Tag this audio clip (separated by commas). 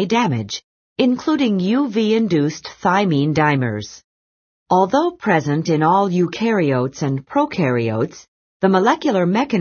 Speech